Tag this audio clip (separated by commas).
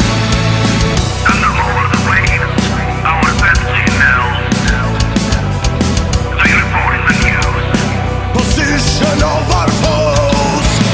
Music